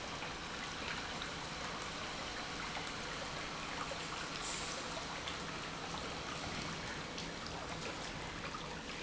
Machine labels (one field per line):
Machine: pump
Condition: normal